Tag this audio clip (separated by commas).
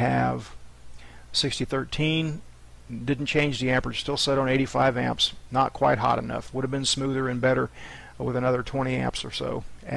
arc welding